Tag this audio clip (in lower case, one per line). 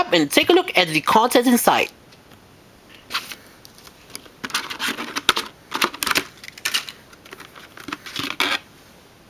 speech